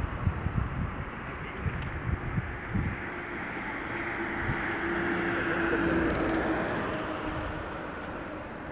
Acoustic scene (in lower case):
street